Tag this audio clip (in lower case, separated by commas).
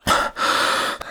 respiratory sounds, breathing